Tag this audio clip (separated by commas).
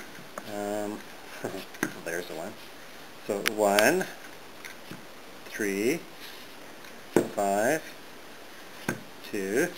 Speech, inside a small room